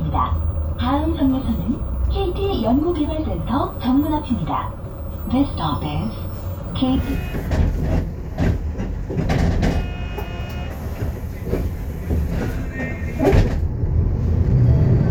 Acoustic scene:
bus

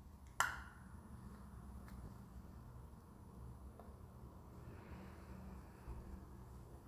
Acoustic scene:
elevator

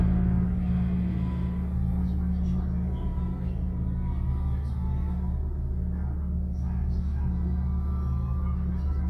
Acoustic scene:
elevator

